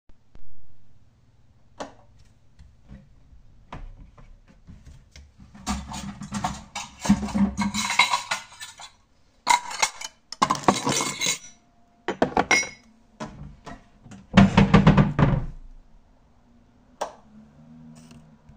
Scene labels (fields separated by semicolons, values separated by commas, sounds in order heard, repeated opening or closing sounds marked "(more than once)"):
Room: hallway; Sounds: light switch, wardrobe or drawer (more than once), cutlery and dishes